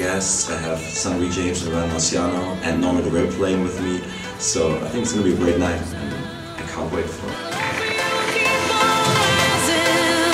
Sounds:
speech, music

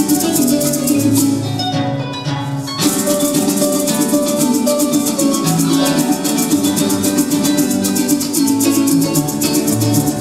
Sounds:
maraca, music

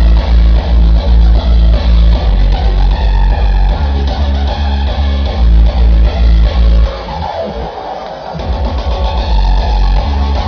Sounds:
techno, music, electronic music

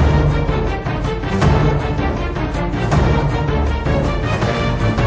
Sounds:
music

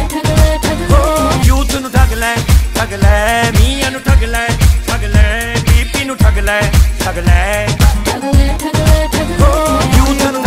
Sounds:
music, singing

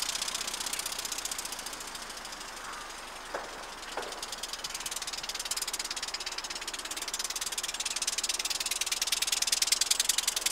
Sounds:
bicycle, vehicle

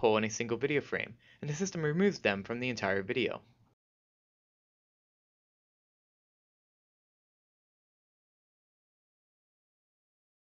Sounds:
speech

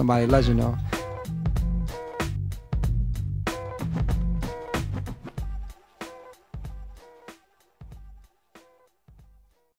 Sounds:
speech, music

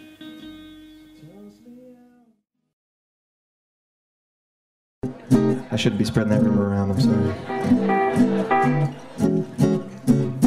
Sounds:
music, speech

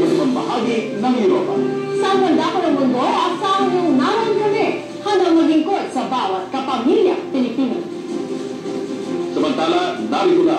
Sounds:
speech, music

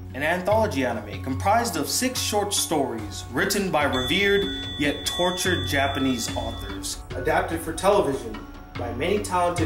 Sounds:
speech, inside a small room, music

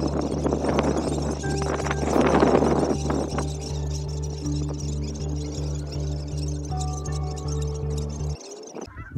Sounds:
honk, fowl, goose

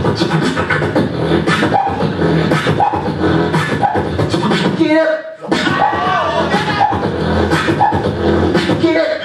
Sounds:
beat boxing

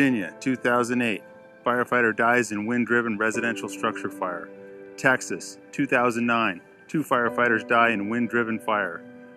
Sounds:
music, speech

